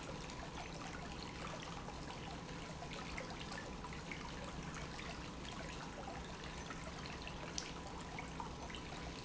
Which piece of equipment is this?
pump